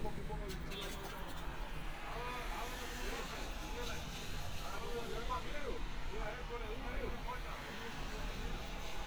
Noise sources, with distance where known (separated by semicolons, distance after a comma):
medium-sounding engine; person or small group talking